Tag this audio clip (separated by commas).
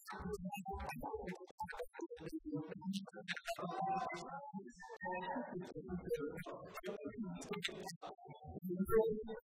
Music, Speech